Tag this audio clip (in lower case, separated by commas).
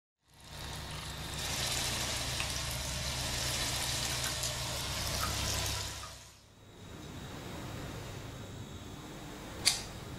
water